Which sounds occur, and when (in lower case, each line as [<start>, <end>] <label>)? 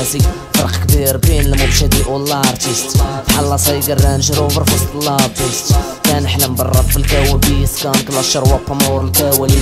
[0.00, 0.36] rapping
[0.00, 9.61] music
[0.50, 9.61] rapping